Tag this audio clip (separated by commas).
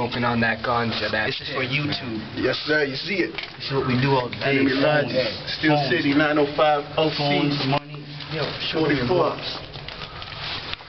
Speech